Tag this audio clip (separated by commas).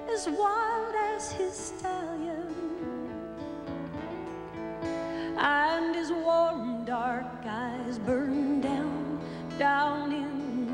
Music